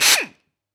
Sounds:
Tools

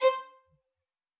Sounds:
Music, Bowed string instrument, Musical instrument

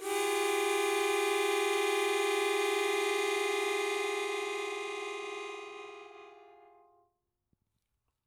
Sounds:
Musical instrument, Harmonica, Music

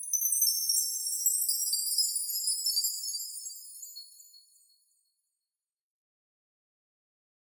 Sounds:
Chime, Bell

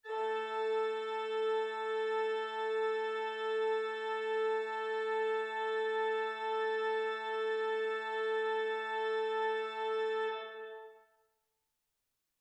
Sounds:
Musical instrument, Keyboard (musical), Music, Organ

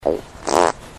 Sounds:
Fart

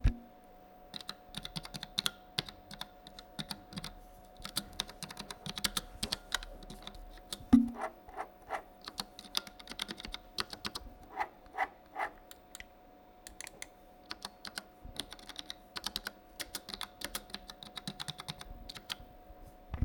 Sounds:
Domestic sounds, Typing

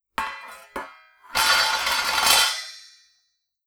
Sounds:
Domestic sounds, dishes, pots and pans

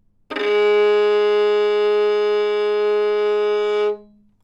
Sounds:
Bowed string instrument, Musical instrument, Music

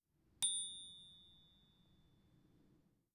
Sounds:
Bicycle bell, Bicycle, Vehicle, Bell, Alarm

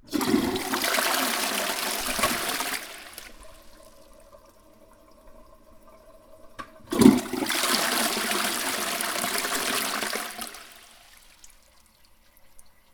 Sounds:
Toilet flush, Domestic sounds

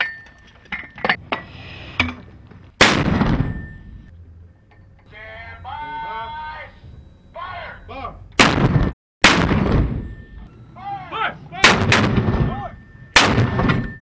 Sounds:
gunfire, Explosion

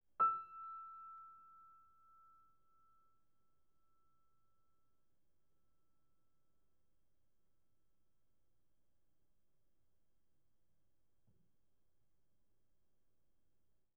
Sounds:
Musical instrument, Piano, Music, Keyboard (musical)

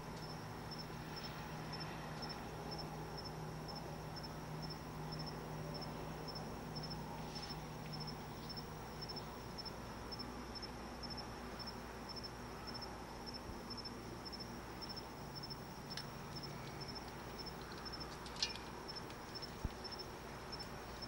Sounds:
Wild animals, Animal, Insect, Cricket

